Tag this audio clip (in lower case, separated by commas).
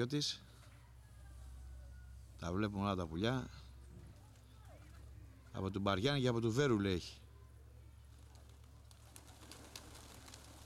speech, dove, bird